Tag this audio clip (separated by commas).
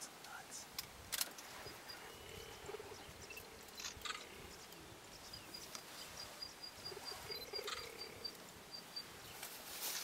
cheetah chirrup